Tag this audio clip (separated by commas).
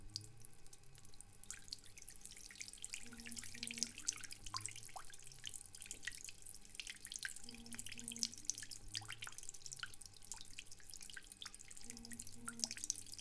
dribble, Liquid, Wild animals, Buzz, Animal, faucet, home sounds, Insect, Pour